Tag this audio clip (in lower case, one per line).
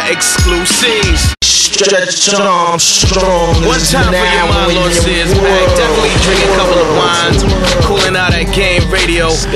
music
speech